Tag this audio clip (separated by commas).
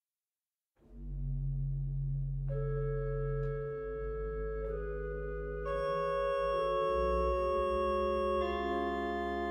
Keyboard (musical), Musical instrument, Music